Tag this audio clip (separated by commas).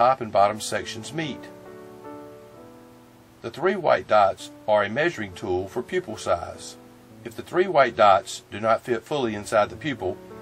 Speech, Music